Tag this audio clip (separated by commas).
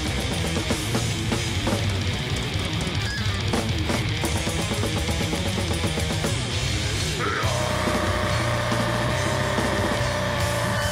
Music